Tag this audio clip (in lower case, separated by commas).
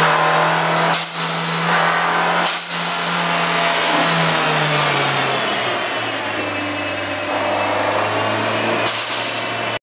vehicle, car, revving, engine